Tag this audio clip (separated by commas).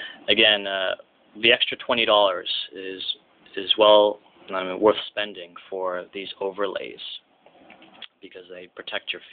Speech, inside a small room